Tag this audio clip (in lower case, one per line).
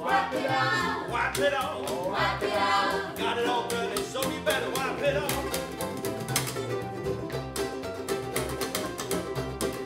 inside a small room
singing
ukulele
music